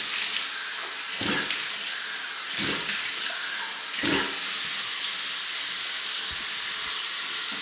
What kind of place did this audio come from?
restroom